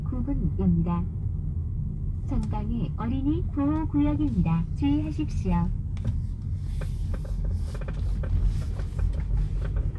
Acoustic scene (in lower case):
car